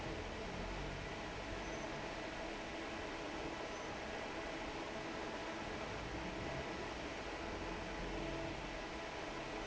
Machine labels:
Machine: fan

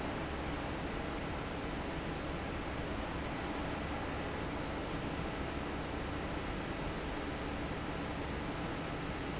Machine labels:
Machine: fan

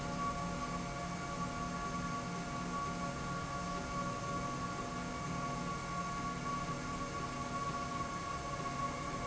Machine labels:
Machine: slide rail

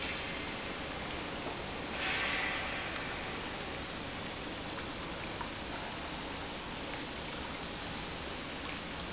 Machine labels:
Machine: pump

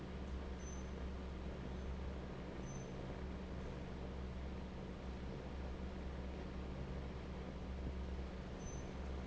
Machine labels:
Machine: fan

